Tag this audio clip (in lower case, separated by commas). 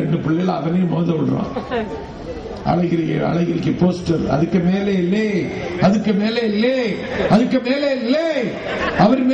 monologue, speech, male speech